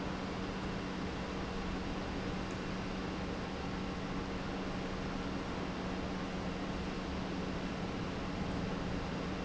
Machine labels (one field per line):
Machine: pump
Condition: normal